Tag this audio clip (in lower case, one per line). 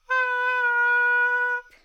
music
woodwind instrument
musical instrument